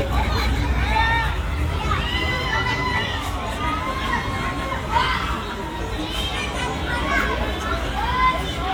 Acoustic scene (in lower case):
park